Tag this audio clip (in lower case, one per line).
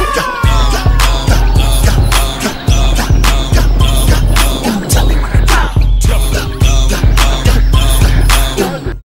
music